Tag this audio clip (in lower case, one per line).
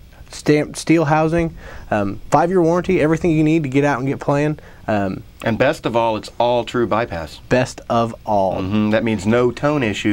speech